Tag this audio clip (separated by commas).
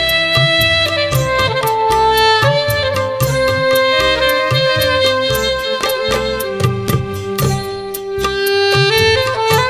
playing saxophone